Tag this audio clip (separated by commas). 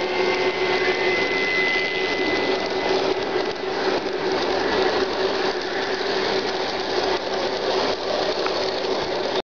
Train, Vehicle, Railroad car